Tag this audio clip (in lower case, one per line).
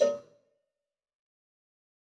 cowbell
bell